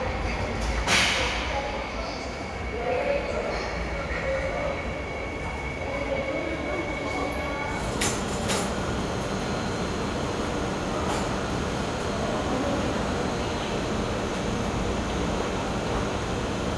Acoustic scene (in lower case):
subway station